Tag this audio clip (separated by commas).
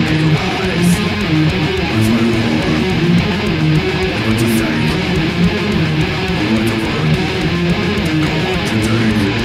Guitar, Plucked string instrument, Musical instrument, Electric guitar, Music